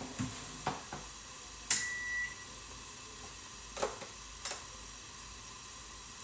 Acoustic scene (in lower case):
kitchen